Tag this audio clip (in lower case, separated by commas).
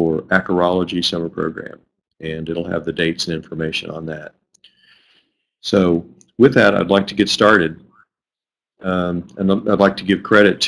speech